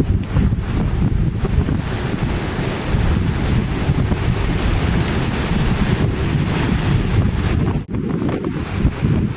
Ocean waves and wind blowing